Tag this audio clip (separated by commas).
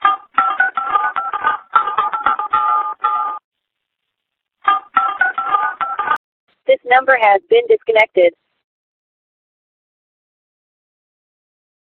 Alarm, Telephone